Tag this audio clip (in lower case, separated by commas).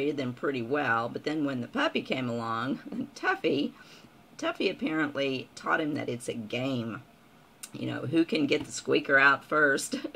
speech